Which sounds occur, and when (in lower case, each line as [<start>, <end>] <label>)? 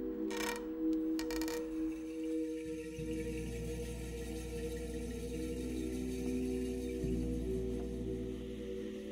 [0.00, 9.11] music
[0.27, 0.57] writing
[1.14, 1.59] writing
[1.94, 7.84] sound effect
[8.20, 9.11] sound effect